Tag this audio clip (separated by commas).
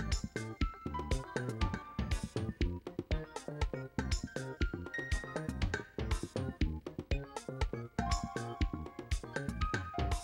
Music